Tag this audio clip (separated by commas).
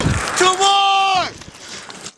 Shout, Human voice